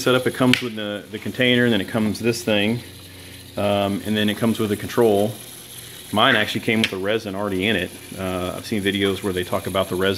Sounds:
speech
water

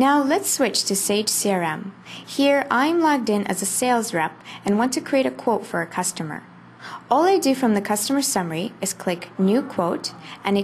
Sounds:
speech

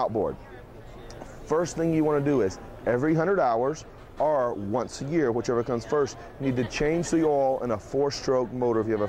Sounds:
speech

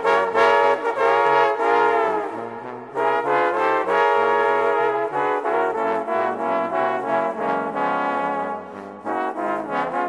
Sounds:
brass instrument
music
trombone

